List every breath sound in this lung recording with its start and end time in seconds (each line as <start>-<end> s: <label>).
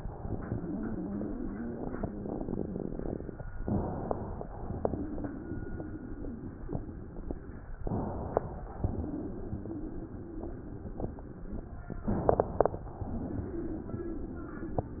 0.00-3.35 s: exhalation
3.60-4.46 s: inhalation
4.56-7.65 s: exhalation
7.89-8.74 s: inhalation
8.78-11.95 s: exhalation
12.03-12.89 s: inhalation